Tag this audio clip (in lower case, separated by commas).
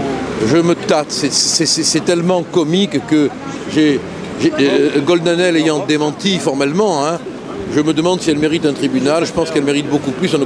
speech